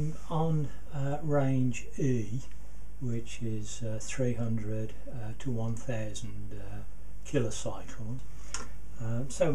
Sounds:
Speech

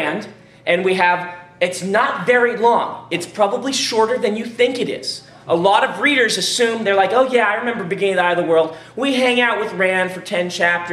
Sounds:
Speech

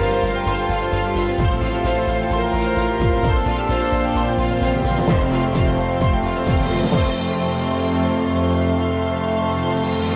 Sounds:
Music

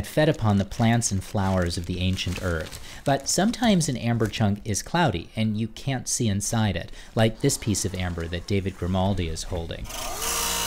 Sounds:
Speech

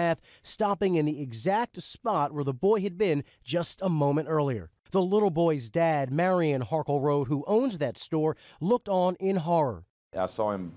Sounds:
Speech

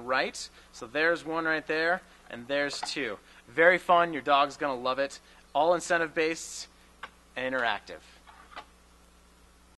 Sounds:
Speech

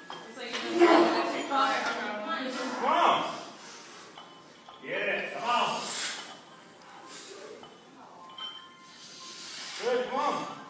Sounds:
Male speech

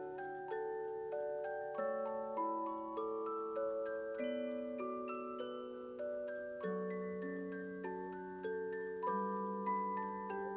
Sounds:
Mallet percussion, Glockenspiel, Marimba

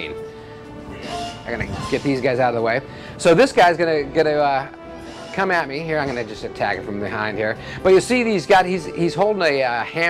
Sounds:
Speech, Music

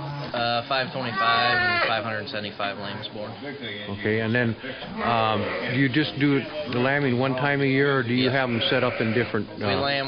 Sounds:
Speech, Sheep, Bleat

